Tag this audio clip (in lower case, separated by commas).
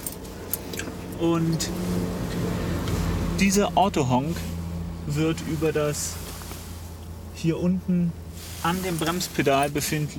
vehicle, speech